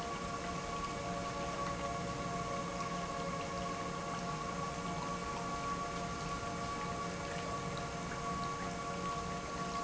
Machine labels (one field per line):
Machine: pump